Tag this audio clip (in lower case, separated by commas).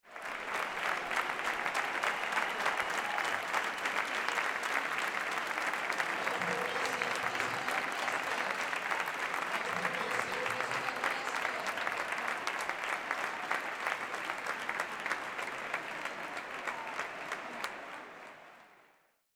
applause, crowd, human group actions